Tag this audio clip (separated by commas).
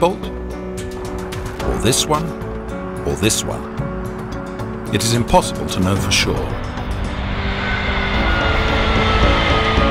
Music, Speech